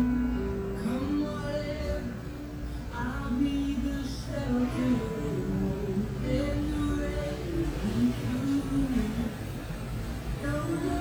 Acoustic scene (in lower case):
cafe